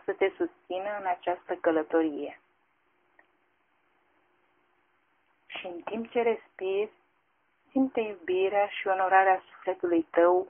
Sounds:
Speech

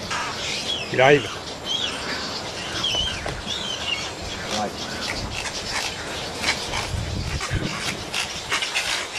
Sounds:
Bird, Bird vocalization, Chirp

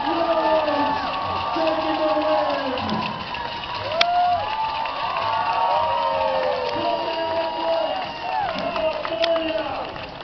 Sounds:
Run, Speech

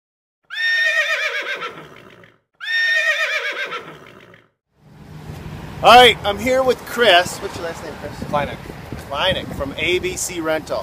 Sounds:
Speech, Neigh

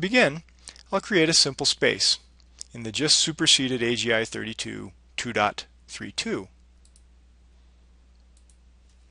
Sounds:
Speech

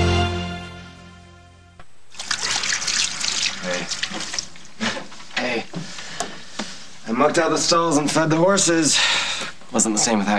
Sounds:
Water

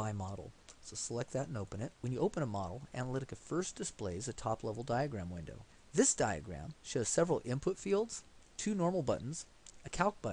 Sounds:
Speech, monologue

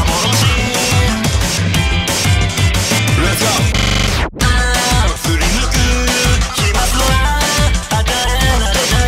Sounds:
Music, Throbbing

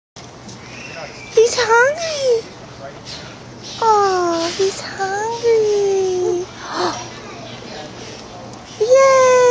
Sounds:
Child speech, Speech

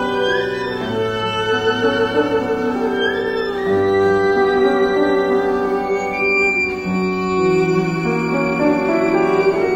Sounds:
Double bass, Music, fiddle, Cello, Musical instrument, Piano, Bowed string instrument

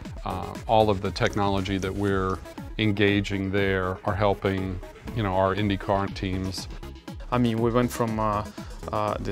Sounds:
Speech, Music

